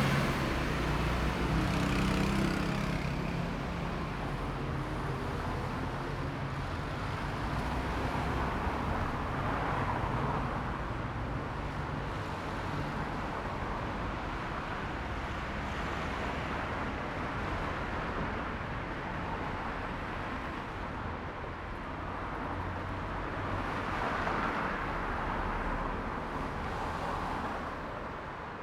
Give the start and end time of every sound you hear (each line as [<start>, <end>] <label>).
[0.00, 3.39] bus
[0.00, 3.39] bus engine accelerating
[0.00, 28.63] car
[0.00, 28.63] car wheels rolling
[0.02, 11.26] motorcycle
[0.02, 11.26] motorcycle engine accelerating
[4.03, 8.42] car engine accelerating